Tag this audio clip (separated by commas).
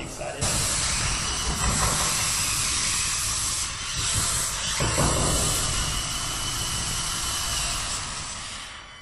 Hiss, Steam